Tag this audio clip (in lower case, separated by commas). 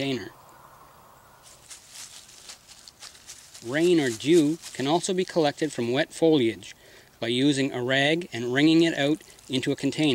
water, outside, rural or natural, speech